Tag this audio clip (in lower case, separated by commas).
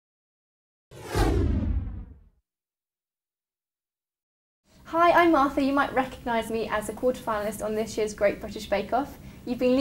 speech